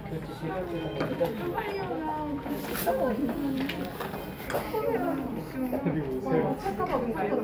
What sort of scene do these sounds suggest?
cafe